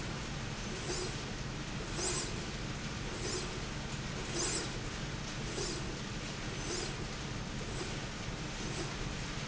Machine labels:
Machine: slide rail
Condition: normal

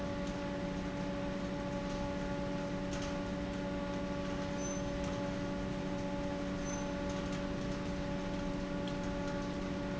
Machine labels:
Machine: fan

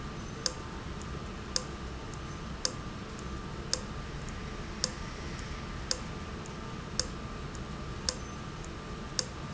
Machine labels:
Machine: valve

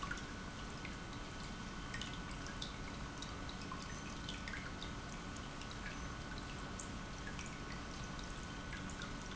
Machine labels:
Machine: pump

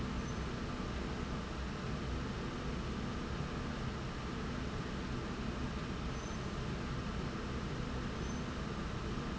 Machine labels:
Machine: slide rail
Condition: normal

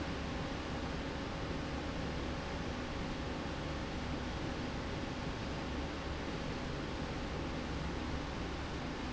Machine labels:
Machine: slide rail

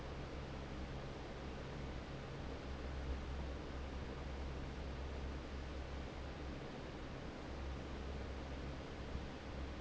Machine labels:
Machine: fan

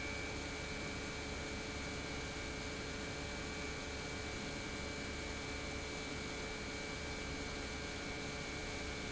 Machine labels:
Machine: pump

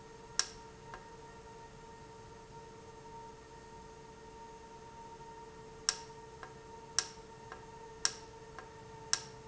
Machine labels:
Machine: valve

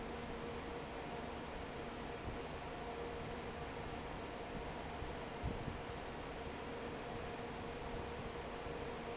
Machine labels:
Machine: fan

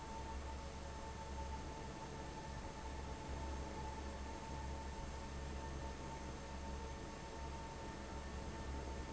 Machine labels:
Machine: fan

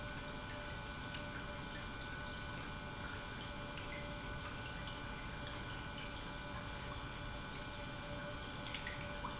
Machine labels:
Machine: pump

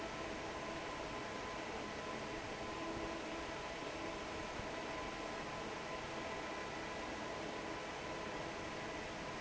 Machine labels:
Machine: fan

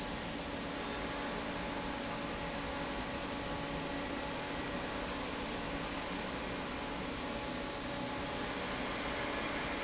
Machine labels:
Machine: fan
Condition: normal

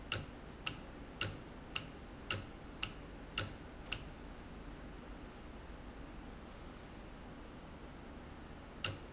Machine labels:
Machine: valve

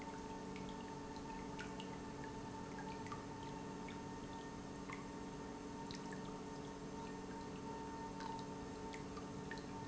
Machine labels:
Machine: pump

